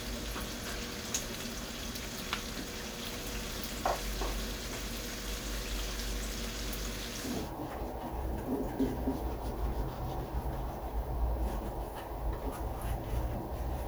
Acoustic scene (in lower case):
kitchen